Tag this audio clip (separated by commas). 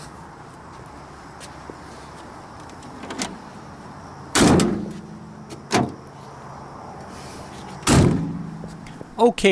Door, Vehicle, Sliding door